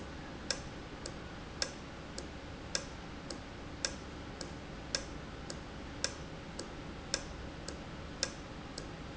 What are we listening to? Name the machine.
valve